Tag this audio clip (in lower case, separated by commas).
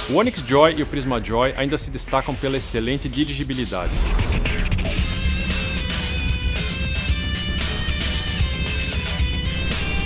music, speech